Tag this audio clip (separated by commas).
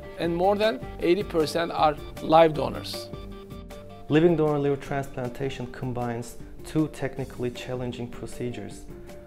Music, Speech